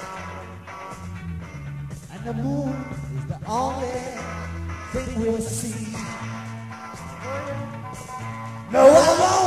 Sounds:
Music

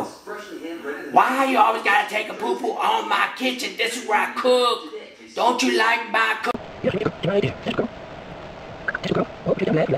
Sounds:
Speech

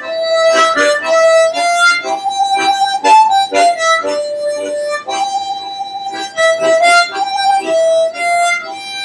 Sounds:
Music, Harmonica, Accordion

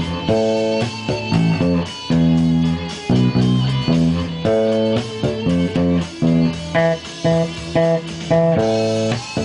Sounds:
Musical instrument, Bass guitar, Plucked string instrument, Guitar, Music

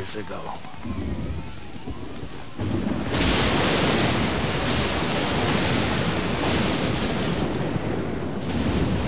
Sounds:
Speech, outside, urban or man-made

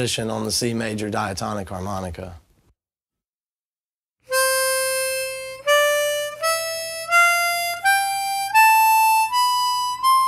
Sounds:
Music, Musical instrument, Speech

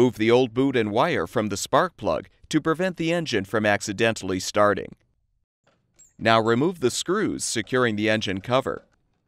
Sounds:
Speech

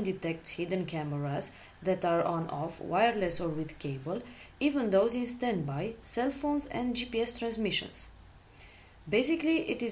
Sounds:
Speech

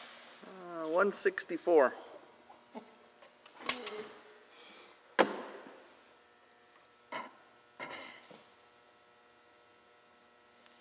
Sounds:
Speech

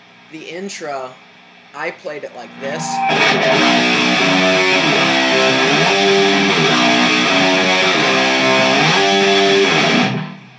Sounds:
Speech, Guitar, Music, Electric guitar, Strum, Plucked string instrument, Musical instrument

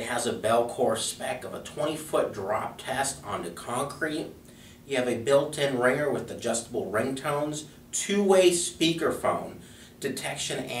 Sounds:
Speech

